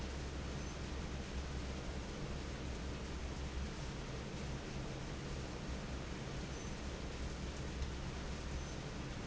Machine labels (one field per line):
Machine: fan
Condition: normal